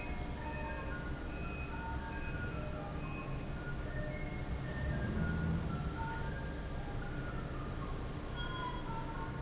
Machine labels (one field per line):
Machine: fan